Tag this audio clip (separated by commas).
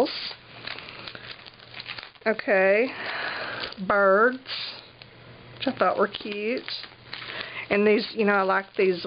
inside a small room, Speech